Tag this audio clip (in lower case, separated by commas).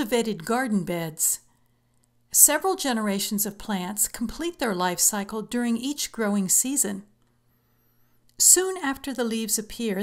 speech